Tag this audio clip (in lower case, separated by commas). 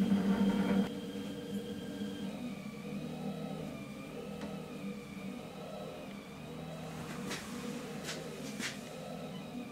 printer